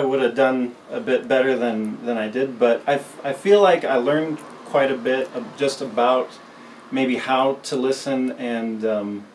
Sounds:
speech

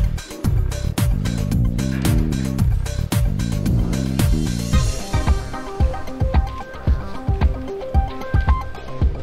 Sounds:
music

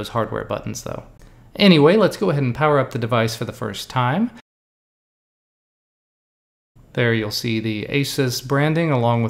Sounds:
speech

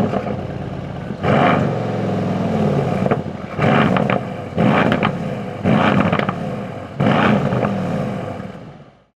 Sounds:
clatter

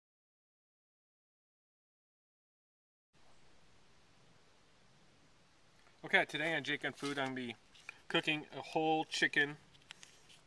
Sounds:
speech

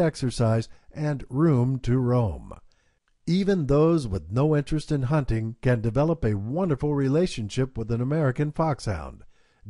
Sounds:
speech

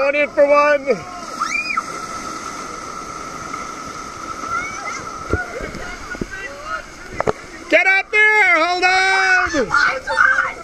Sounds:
speech
people screaming
screaming

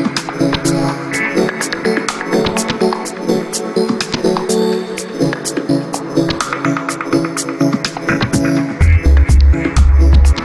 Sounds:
music

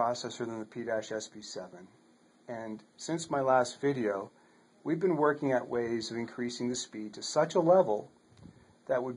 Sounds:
speech

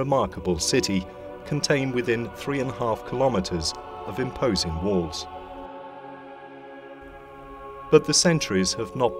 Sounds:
music
speech

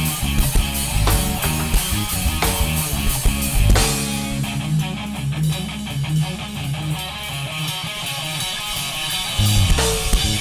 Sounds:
music

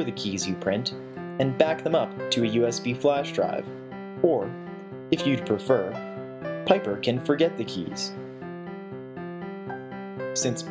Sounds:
speech
music

